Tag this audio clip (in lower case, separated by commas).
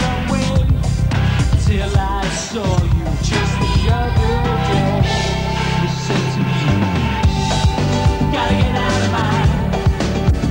punk rock, music, rock music, progressive rock, song, independent music